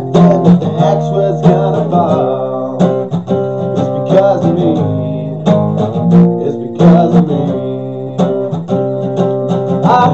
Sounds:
music

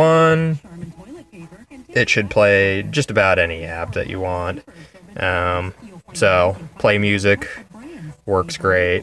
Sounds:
speech

